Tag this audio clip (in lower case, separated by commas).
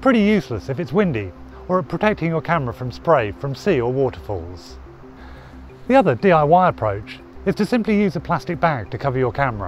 music, speech